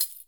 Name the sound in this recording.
object falling on carpet